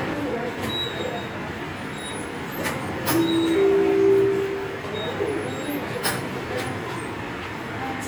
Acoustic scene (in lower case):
subway station